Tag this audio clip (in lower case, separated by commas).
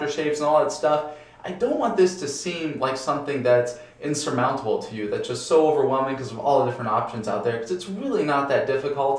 speech